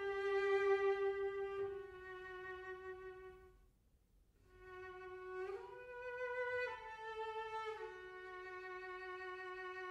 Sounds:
music
musical instrument

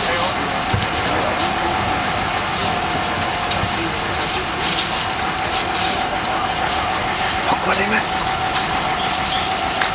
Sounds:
fire

